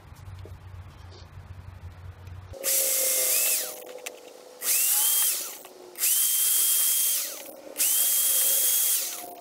A power drill being used